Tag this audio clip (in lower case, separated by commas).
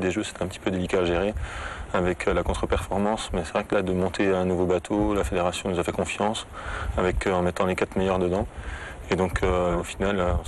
speech